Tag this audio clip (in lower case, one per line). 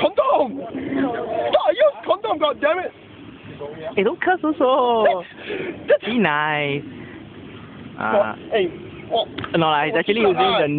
speech